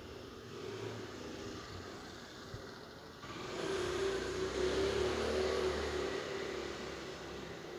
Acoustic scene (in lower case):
residential area